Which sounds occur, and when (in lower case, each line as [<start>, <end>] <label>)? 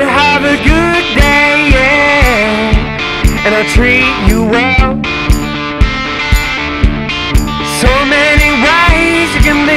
[0.00, 9.75] music
[0.01, 2.68] male singing
[3.30, 4.88] male singing
[7.60, 9.75] male singing